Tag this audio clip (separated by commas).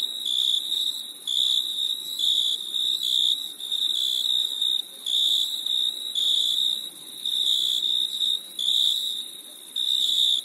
cricket chirping